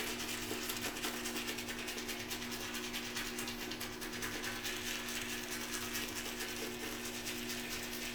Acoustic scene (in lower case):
restroom